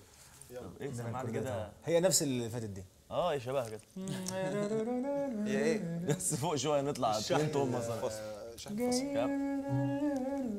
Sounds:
inside a large room or hall, speech, singing

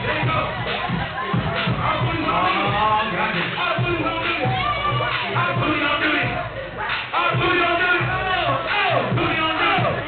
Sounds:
music, speech

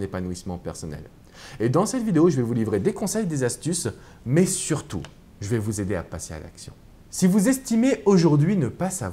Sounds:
speech

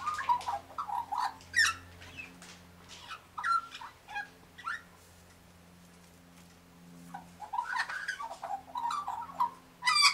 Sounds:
magpie calling

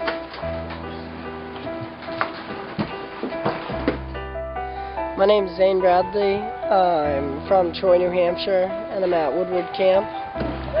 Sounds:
music, outside, rural or natural, inside a small room, speech

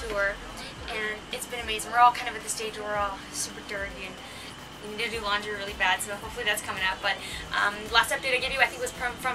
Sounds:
speech

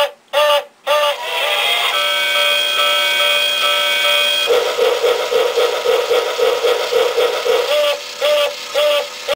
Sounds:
tick-tock

